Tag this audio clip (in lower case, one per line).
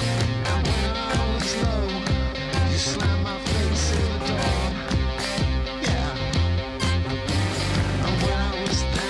music